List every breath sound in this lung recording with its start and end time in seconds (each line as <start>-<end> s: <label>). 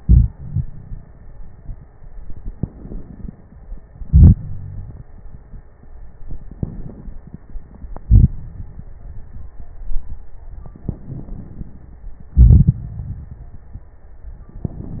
2.54-3.84 s: crackles
2.56-3.85 s: inhalation
3.85-5.10 s: exhalation
6.53-7.24 s: inhalation
7.92-8.55 s: exhalation
7.92-8.55 s: crackles
10.90-11.76 s: inhalation
12.34-13.71 s: exhalation